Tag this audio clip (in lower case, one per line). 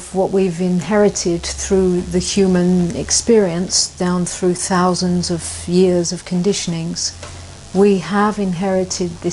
speech